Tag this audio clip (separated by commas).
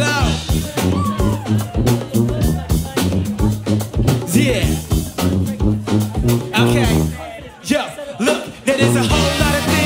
Music, Speech